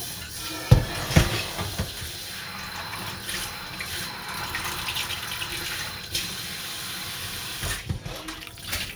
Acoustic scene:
kitchen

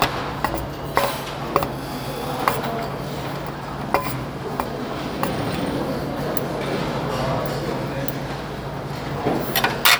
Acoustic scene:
restaurant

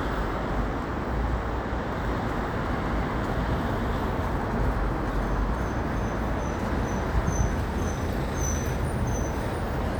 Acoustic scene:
street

